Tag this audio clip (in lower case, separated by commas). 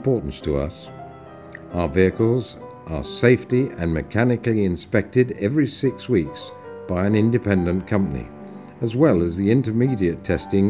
music, speech